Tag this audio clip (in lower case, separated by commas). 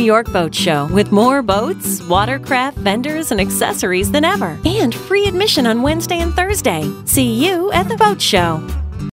speech, music